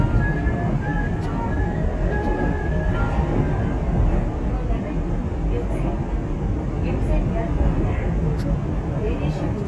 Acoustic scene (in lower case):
subway train